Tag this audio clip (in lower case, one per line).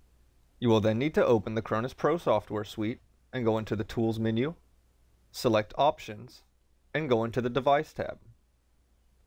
speech